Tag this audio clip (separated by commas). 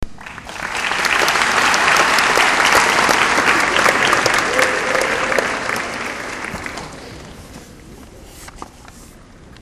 Human group actions, Crowd, Applause